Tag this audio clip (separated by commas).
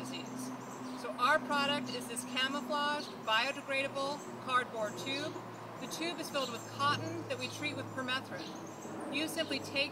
Speech